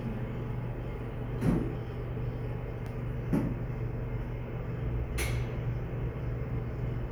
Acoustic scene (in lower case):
elevator